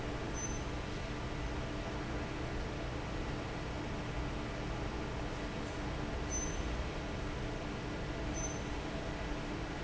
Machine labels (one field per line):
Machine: fan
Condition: normal